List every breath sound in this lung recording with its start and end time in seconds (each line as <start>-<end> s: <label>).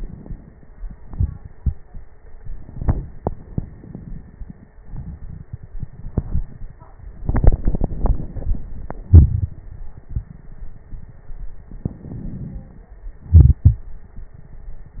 11.80-13.03 s: inhalation
13.24-13.96 s: exhalation